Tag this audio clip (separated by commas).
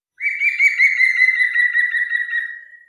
Wild animals, bird call, Animal, Bird